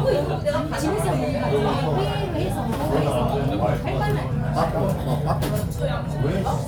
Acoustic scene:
restaurant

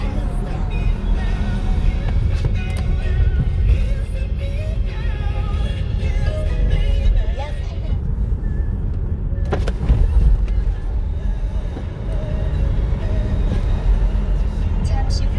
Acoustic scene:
car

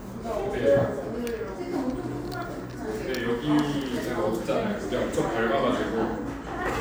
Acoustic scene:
cafe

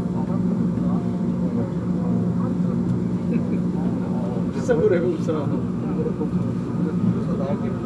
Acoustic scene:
subway train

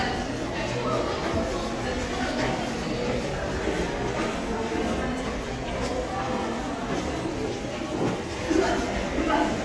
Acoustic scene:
crowded indoor space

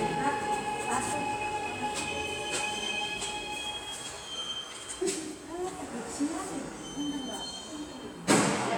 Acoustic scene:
subway station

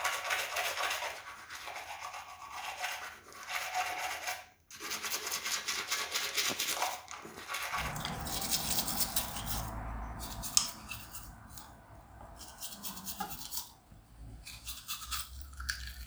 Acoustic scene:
restroom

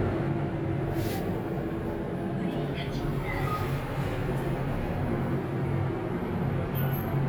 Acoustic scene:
elevator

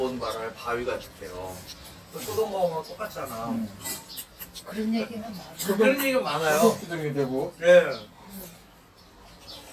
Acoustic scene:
restaurant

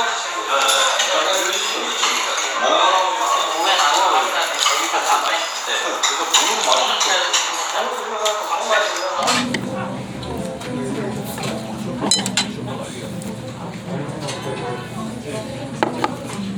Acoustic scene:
restaurant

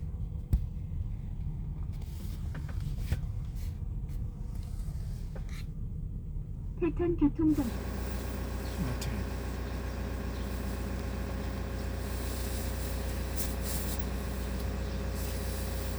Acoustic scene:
car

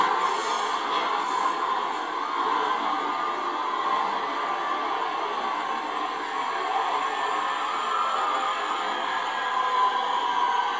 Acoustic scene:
subway train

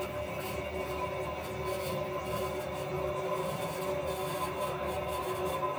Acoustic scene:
restroom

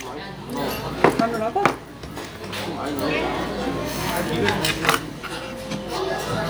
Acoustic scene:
restaurant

